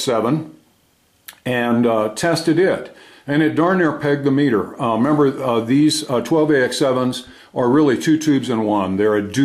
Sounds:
Speech

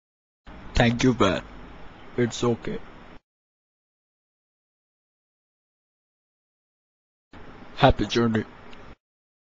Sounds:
Speech

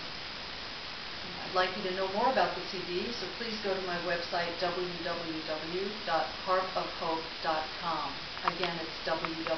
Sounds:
Speech

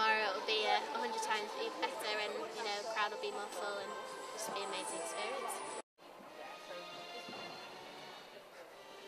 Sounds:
Speech, Music

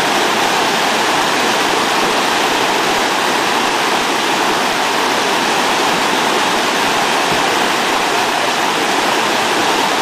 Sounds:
waterfall burbling, Waterfall

